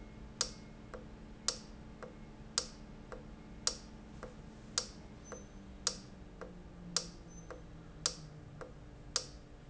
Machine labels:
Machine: valve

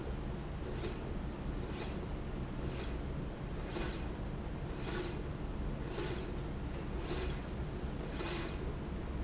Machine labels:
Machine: slide rail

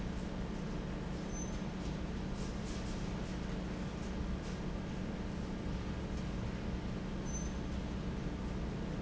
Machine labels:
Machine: fan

